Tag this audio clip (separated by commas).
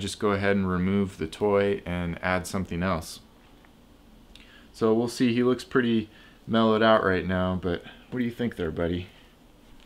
Speech